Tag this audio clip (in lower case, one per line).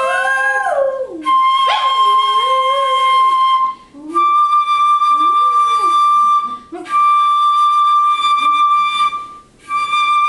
animal
music
dog
whimper (dog)
flute